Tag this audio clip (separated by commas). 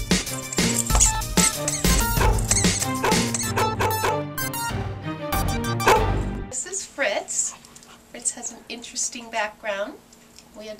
Animal, Dog, Domestic animals, Music, Bow-wow, Speech